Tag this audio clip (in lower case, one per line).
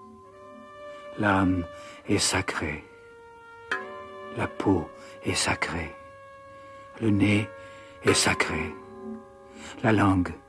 music
speech